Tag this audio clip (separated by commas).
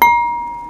dishes, pots and pans, home sounds